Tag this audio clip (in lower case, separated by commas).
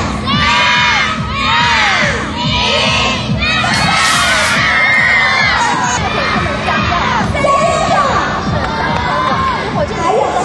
music, speech